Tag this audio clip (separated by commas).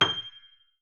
Musical instrument, Music, Piano, Keyboard (musical)